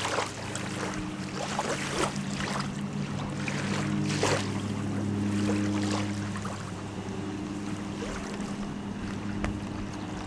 Water running continuously